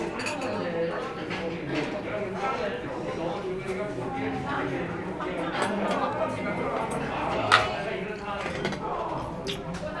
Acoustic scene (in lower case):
crowded indoor space